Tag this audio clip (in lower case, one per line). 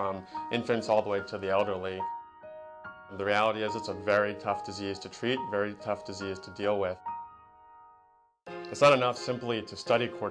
music
speech